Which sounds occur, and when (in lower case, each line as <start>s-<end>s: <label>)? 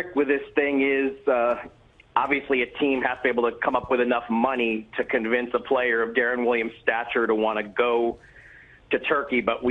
0.0s-1.6s: male speech
0.0s-9.7s: noise
2.1s-4.8s: male speech
5.0s-8.1s: male speech
8.9s-9.7s: male speech